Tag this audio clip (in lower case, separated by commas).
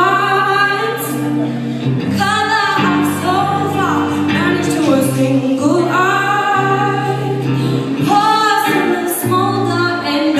music